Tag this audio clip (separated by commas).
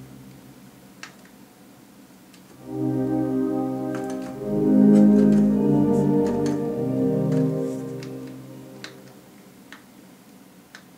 Music, Piano, Musical instrument, Keyboard (musical), Electric piano